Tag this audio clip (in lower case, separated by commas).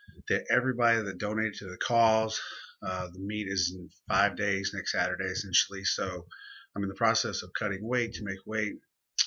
speech